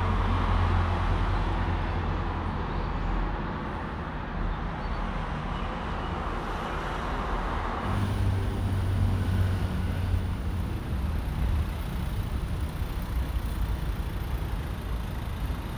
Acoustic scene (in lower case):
street